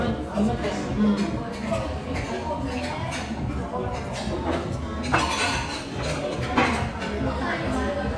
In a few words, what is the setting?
restaurant